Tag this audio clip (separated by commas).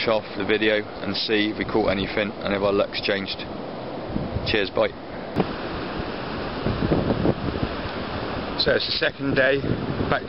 Waves